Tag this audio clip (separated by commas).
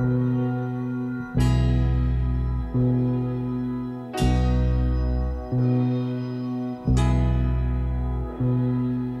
Music